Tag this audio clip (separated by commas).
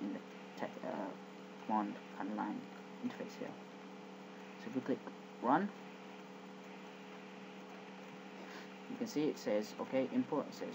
Speech